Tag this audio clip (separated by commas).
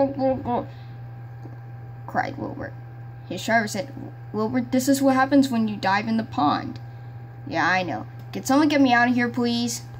Speech